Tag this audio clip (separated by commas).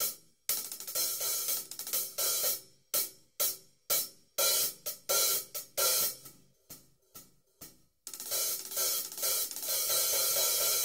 playing cymbal, Hi-hat, Cymbal